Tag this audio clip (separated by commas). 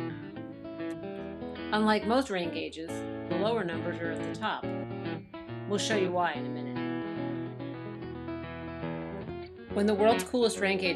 Speech, Music